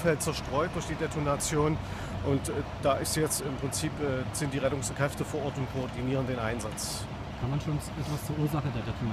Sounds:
speech

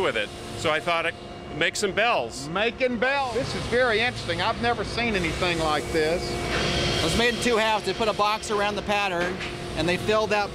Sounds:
speech

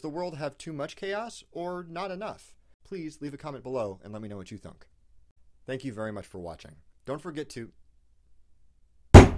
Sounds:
speech
thunk

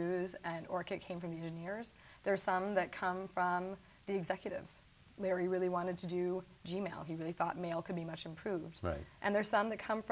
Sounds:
speech
inside a small room

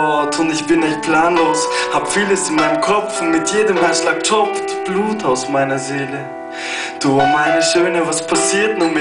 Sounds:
speech
music

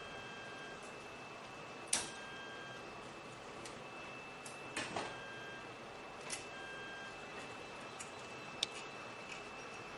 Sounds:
printer printing
printer

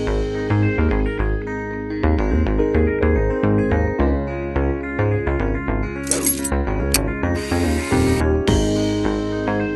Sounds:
music

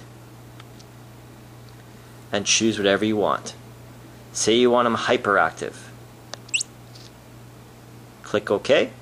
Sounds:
speech

